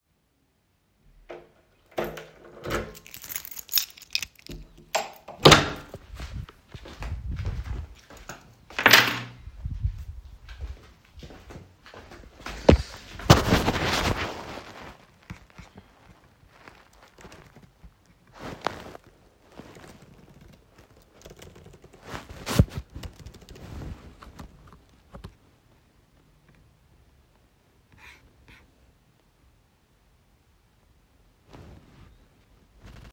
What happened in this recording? The human operator went in the room by opening the door with the keys. Then, he put them on the table, and immediately sat working, typing on the laptop keyboard. The phone was in the pocket